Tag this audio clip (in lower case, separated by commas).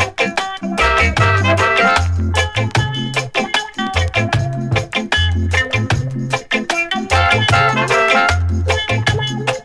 reggae, music